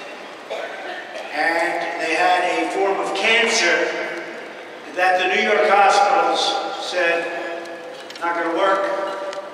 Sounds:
Speech, monologue, Male speech

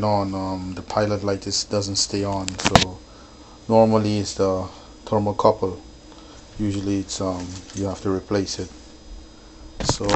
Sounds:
Speech

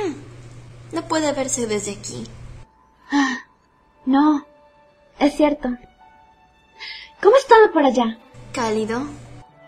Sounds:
Speech, Music

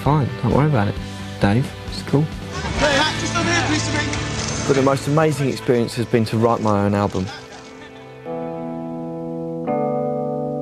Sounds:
Speech, Music, outside, urban or man-made

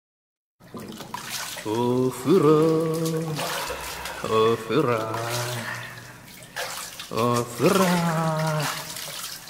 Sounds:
Drip

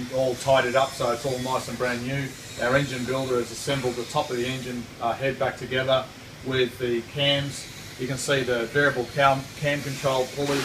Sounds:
Speech

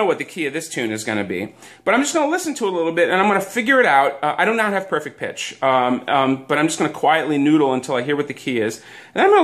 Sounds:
Speech

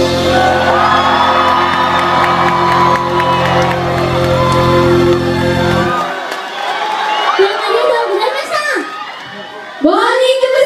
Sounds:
Speech, Music

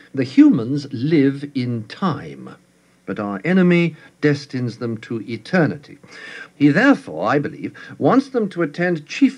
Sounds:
monologue, Speech

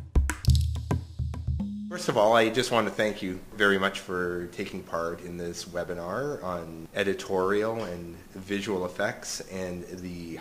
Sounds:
Speech

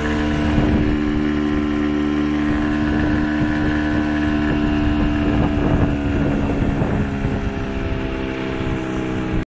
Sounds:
speedboat, Vehicle, Water vehicle

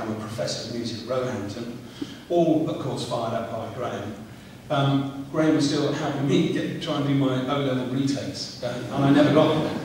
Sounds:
Speech

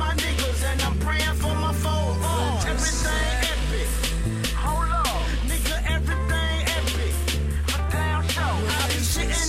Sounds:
Hip hop music, Rapping, Music

